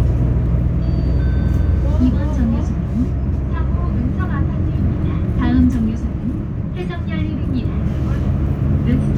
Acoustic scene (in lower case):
bus